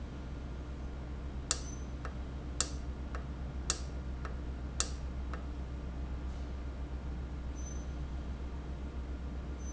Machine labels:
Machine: valve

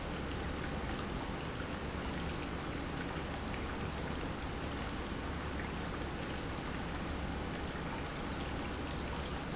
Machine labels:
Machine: pump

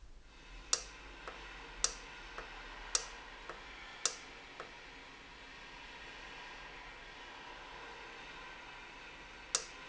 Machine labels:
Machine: valve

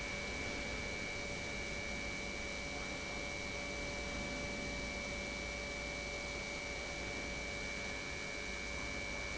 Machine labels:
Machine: pump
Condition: normal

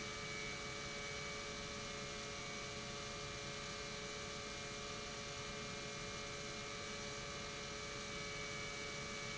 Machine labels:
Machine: pump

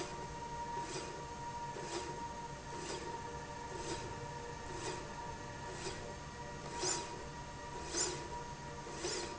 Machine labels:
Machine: slide rail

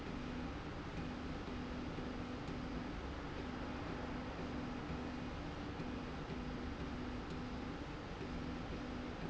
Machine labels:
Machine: slide rail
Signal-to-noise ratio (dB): 0 dB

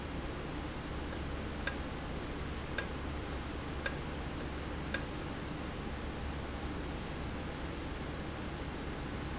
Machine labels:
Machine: valve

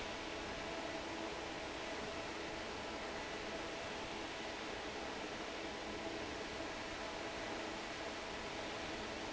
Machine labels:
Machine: fan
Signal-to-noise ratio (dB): 6 dB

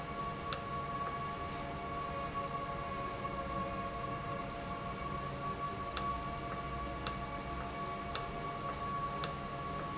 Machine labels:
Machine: valve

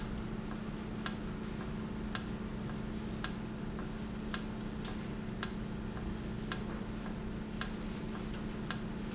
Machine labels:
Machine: valve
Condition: normal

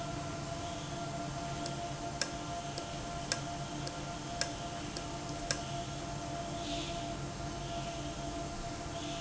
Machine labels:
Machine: valve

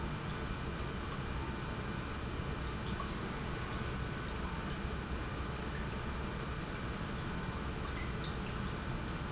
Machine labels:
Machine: pump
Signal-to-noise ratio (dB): -6 dB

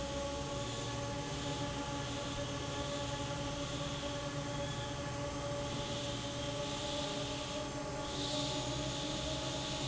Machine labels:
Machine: fan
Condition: normal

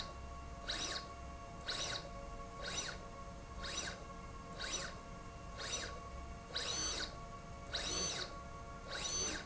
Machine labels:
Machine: slide rail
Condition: abnormal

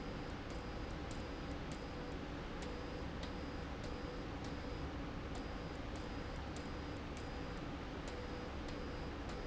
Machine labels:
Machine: slide rail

